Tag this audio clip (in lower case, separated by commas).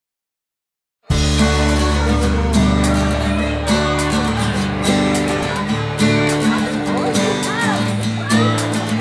music, speech